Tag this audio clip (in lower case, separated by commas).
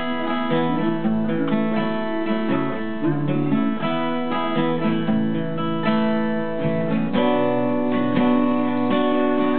music, guitar, musical instrument